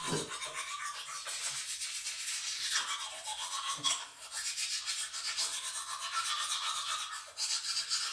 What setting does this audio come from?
restroom